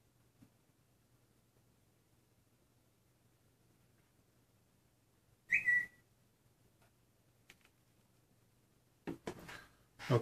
A whistle and something move and a voice